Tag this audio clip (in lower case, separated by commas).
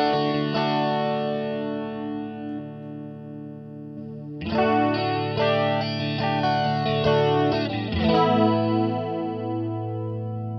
guitar, distortion, plucked string instrument, music, musical instrument, effects unit